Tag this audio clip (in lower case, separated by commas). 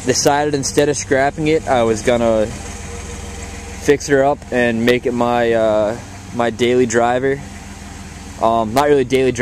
speech